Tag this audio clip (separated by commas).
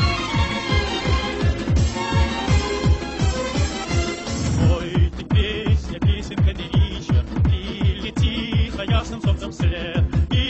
Techno, Music